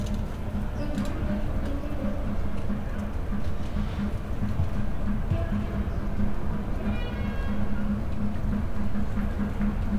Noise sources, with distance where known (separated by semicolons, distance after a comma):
music from a fixed source, far